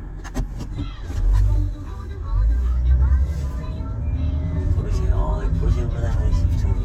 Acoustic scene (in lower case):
car